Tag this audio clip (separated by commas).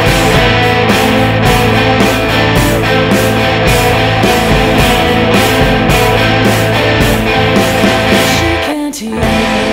Electric guitar, Plucked string instrument, Musical instrument, Music, Guitar